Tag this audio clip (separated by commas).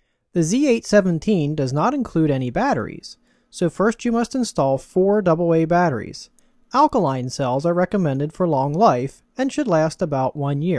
Speech, monologue